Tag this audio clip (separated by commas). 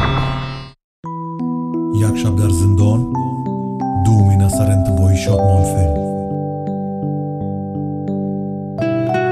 Music, Speech